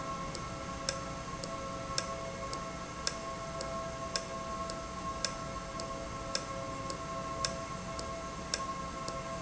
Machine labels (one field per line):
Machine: valve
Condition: normal